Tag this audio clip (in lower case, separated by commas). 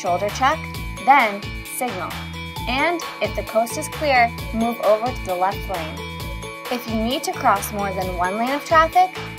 speech, music